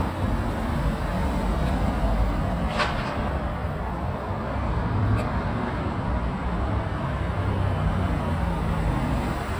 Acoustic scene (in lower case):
street